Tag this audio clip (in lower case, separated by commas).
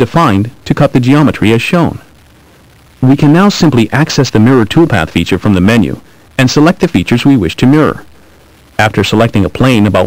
speech